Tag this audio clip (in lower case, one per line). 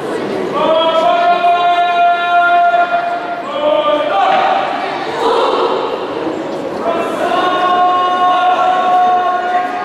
speech